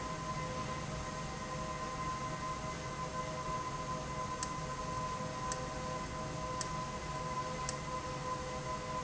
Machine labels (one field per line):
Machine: valve